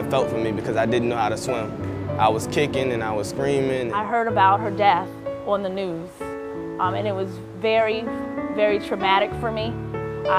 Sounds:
speech
music

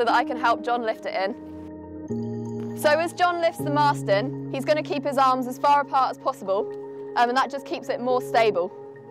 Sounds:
speech
music

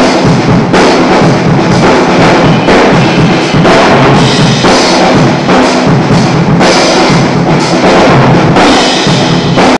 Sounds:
music

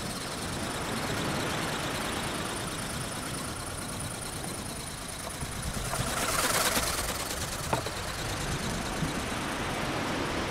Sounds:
bird wings flapping

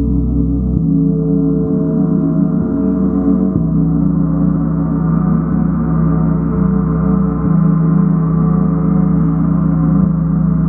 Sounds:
playing gong

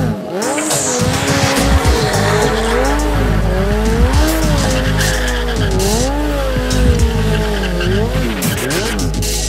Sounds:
tire squeal
music
vehicle
motor vehicle (road)
motorcycle

